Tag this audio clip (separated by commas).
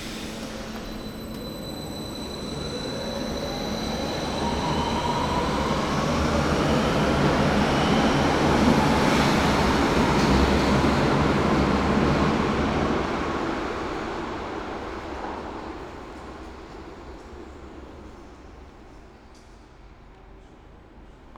Rail transport, Subway, Vehicle